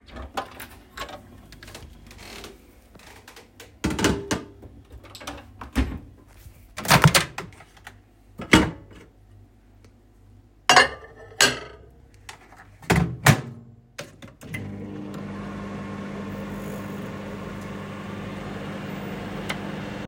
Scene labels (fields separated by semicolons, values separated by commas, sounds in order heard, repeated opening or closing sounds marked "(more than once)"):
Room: kitchen; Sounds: cutlery and dishes, microwave